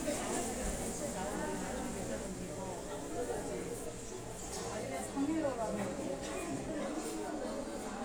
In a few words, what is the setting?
crowded indoor space